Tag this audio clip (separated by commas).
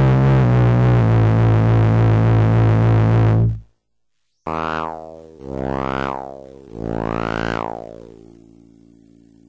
Sampler